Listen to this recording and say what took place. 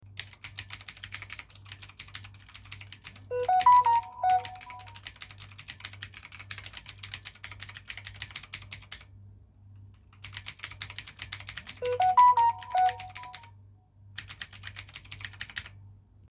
I sat down at my desk and started typing on the keyboard. While I was typing, my phone received a notification and started ringing. After the notification, I continued typing.